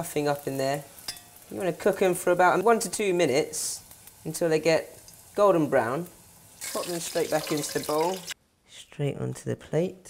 A person speaks while oil sizzles and splashes